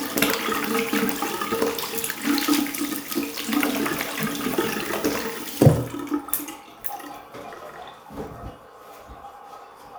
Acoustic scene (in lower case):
restroom